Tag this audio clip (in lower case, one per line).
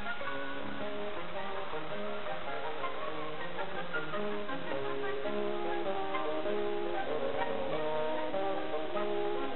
music